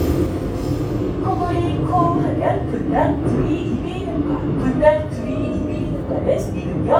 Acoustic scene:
subway train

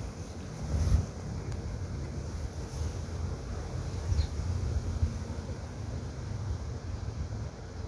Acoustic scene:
park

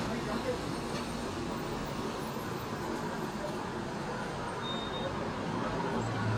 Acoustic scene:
street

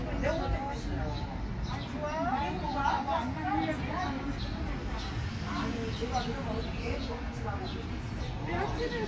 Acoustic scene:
park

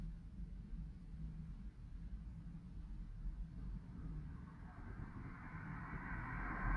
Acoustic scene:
residential area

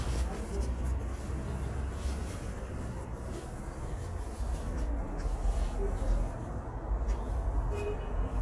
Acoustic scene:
residential area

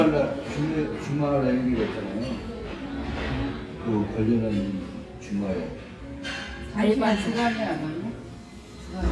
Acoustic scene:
restaurant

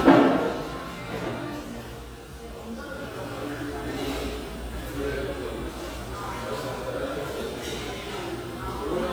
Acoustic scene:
cafe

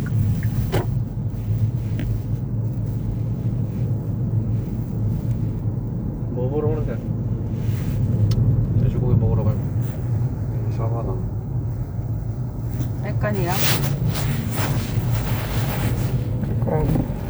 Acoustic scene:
car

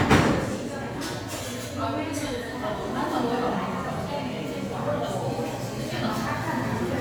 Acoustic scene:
cafe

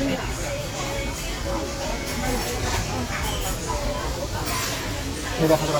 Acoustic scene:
restaurant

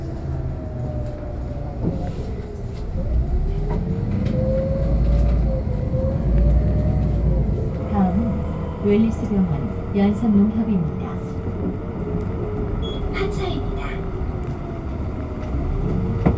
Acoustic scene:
bus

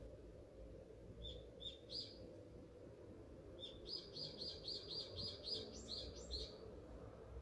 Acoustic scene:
park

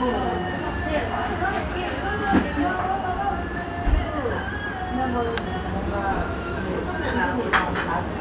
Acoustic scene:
restaurant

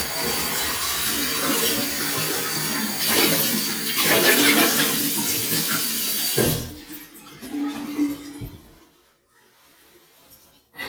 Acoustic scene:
restroom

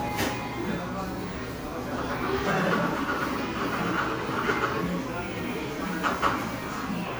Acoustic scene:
cafe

